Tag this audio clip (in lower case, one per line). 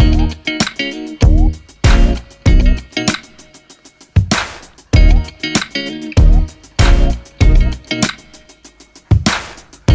music